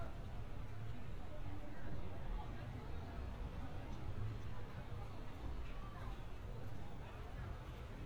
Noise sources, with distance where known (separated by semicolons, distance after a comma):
person or small group talking, far